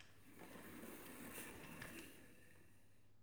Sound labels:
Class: furniture moving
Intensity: medium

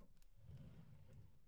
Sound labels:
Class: drawer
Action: opening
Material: wooden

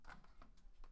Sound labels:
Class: window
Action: opening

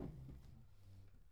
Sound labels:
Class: furniture moving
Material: wooden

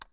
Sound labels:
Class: switch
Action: being turned on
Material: plastic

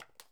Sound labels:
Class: object falling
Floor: carpet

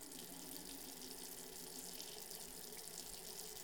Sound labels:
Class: water tap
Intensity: medium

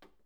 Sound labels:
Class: cupboard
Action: opening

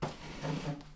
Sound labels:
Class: furniture moving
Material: wooden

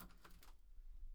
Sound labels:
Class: window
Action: opening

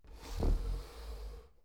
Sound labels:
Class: furniture moving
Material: wooden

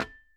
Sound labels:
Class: object falling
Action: being thrown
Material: glass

